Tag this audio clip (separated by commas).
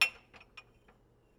Domestic sounds, Glass, clink, dishes, pots and pans